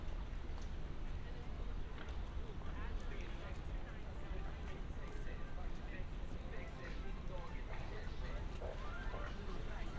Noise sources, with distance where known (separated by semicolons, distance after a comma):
music from an unclear source; person or small group talking, far